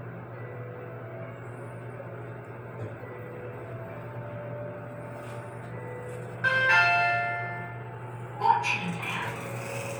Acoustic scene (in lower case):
elevator